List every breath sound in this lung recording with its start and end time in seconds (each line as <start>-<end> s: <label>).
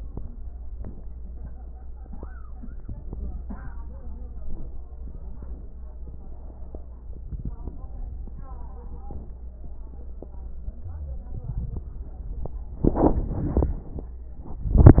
10.80-11.32 s: wheeze